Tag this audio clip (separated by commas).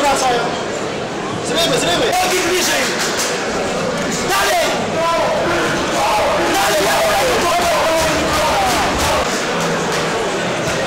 Speech